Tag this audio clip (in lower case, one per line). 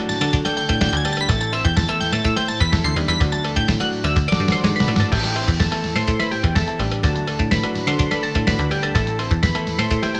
video game music
music